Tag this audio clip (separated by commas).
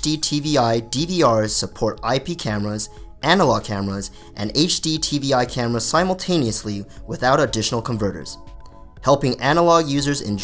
Music, Narration, Speech